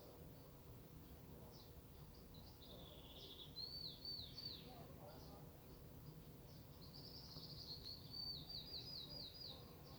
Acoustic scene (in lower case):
park